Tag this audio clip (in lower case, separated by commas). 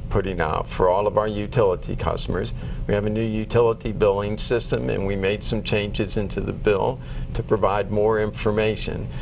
speech